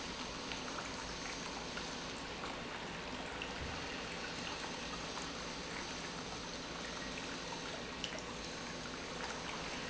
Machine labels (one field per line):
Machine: pump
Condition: normal